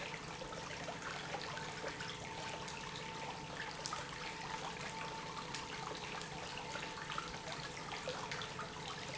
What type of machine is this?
pump